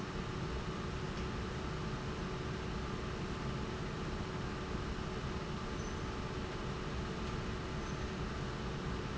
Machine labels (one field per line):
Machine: fan